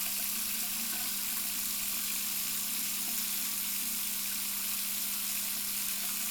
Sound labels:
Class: water tap